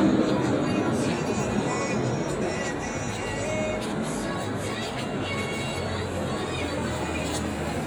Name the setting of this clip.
street